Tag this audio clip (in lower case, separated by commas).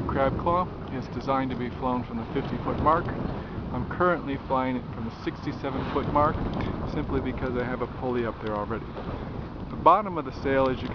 speech, sailboat